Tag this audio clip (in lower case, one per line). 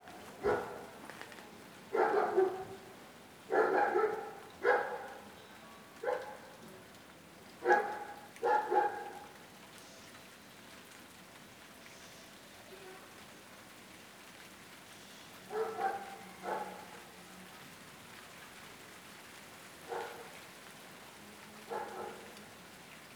pets
dog
animal